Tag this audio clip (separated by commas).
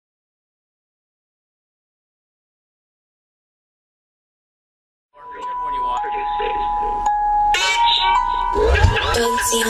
Speech, Music